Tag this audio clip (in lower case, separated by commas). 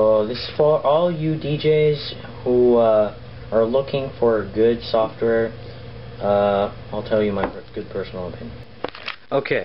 speech